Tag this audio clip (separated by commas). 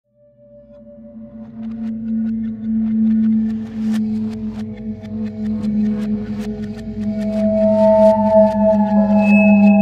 Soundtrack music, Music